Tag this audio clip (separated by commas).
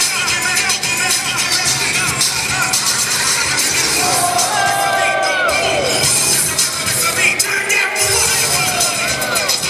Music